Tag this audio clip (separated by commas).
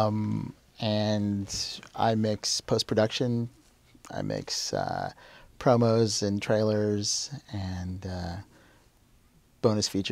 Speech